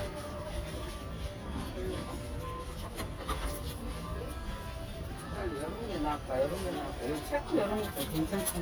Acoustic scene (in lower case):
crowded indoor space